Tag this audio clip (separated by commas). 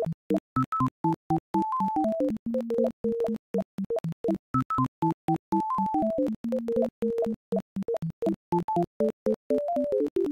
Music